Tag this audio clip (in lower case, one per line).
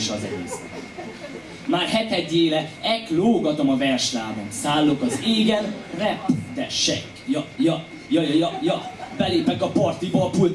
speech